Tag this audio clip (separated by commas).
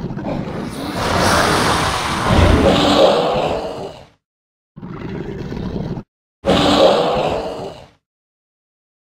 Sound effect